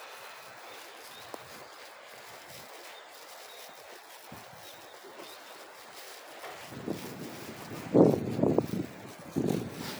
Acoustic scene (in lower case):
residential area